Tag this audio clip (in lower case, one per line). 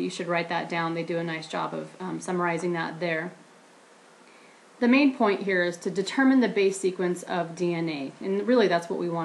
speech